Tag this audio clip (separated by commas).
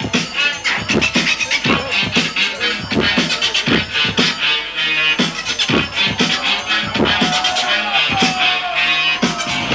Music, Scratching (performance technique)